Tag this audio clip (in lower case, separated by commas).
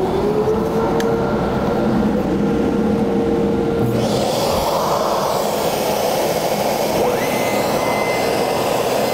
wood, tools